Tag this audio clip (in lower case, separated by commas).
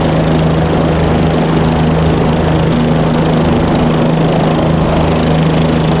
vehicle, aircraft